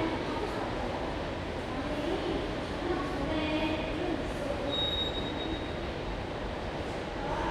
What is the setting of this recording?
subway station